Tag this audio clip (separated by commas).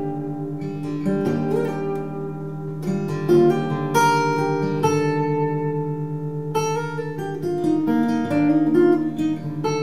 Acoustic guitar, Music, Musical instrument, Guitar